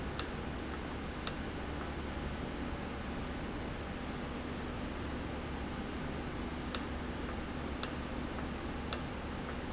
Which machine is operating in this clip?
valve